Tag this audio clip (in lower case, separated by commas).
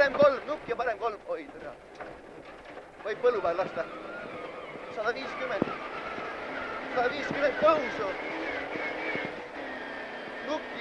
air brake, vehicle, speech, truck